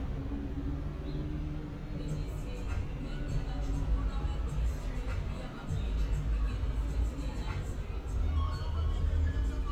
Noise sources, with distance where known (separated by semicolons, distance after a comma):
music from an unclear source